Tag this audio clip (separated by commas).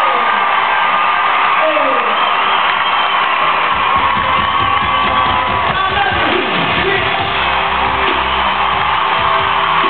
Speech, Music